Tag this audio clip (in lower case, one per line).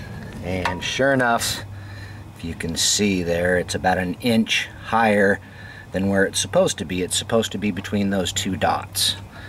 speech